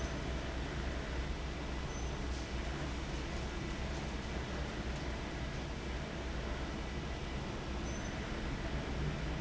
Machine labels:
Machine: fan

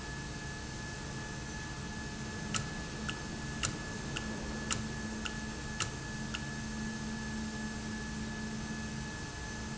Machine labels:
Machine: valve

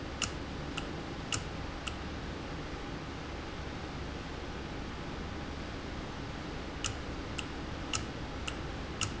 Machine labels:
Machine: valve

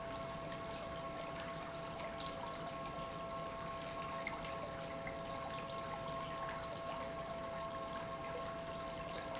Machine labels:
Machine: pump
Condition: normal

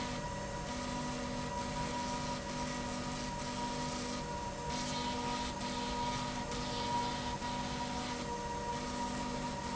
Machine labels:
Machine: slide rail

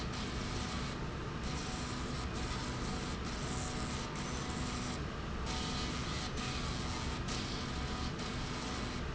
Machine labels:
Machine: slide rail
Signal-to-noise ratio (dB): -6 dB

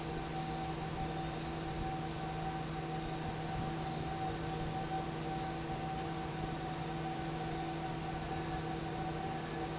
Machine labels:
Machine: fan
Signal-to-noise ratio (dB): -6 dB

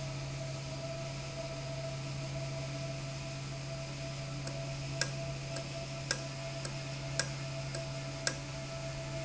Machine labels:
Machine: valve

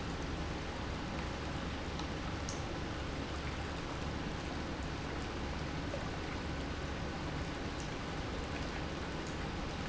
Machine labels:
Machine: pump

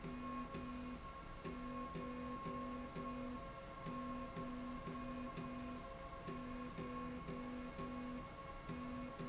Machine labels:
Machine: slide rail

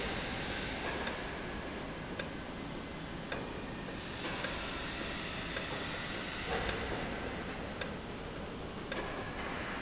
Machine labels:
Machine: valve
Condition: normal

